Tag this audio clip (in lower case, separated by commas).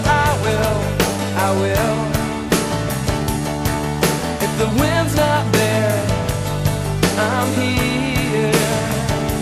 music